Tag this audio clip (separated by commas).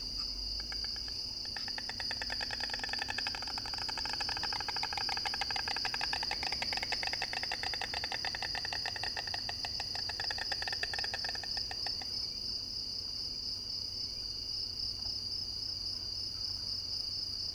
Wild animals, Animal, Insect